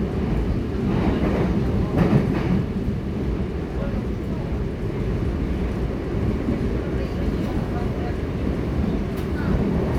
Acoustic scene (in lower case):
subway train